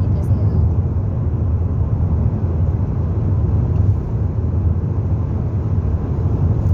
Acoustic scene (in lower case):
car